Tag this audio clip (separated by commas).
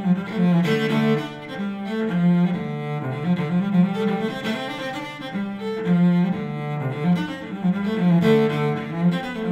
playing cello